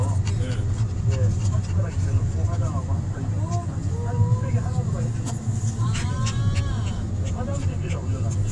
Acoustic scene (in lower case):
car